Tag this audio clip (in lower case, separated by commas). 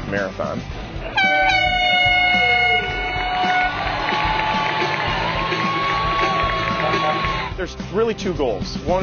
run, music, speech